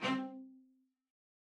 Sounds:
music, bowed string instrument, musical instrument

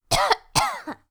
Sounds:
cough, respiratory sounds

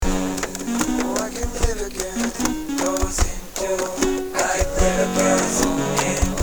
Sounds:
music, human voice, musical instrument, plucked string instrument, acoustic guitar, guitar

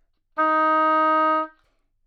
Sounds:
music, woodwind instrument, musical instrument

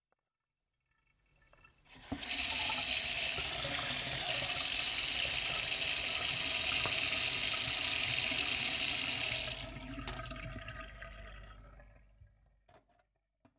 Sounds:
sink (filling or washing), domestic sounds, water tap

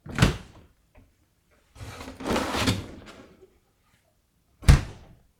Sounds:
domestic sounds, door

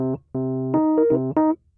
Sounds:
piano, music, keyboard (musical), musical instrument

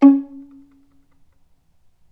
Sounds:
musical instrument, music, bowed string instrument

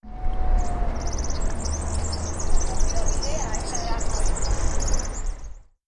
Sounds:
animal, wild animals, bird

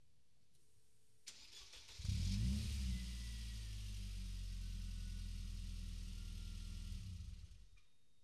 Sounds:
engine, engine starting, vehicle, motor vehicle (road), car, accelerating

